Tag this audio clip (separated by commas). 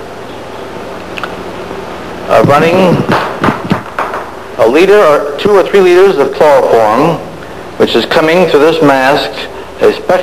Speech